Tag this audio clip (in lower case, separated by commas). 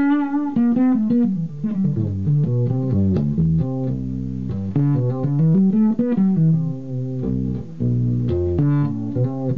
plucked string instrument, guitar, playing bass guitar, musical instrument, music, bass guitar